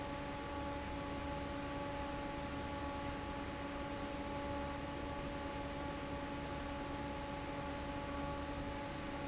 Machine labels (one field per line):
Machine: fan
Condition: normal